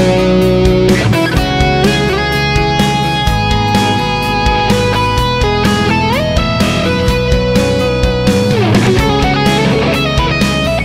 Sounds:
guitar
strum
music
musical instrument
plucked string instrument
acoustic guitar
bass guitar

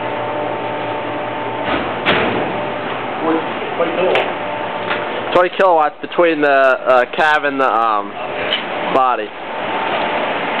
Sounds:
vehicle
speech
truck

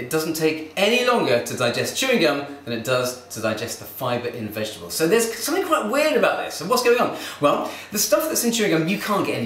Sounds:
speech

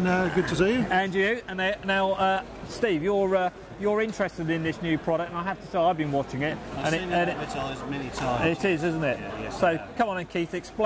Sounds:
speech

